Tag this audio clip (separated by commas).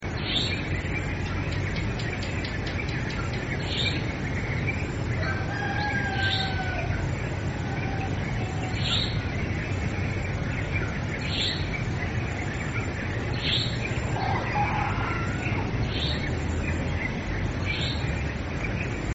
Animal, rooster, Insect, Wild animals, livestock, Cricket, Fowl